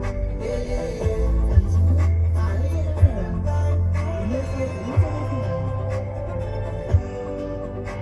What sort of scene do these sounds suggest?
car